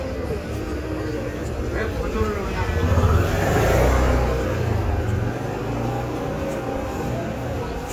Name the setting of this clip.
residential area